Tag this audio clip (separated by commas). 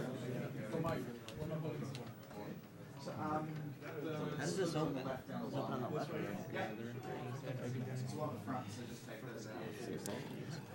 Speech